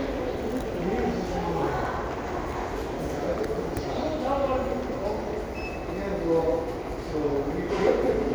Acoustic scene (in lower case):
crowded indoor space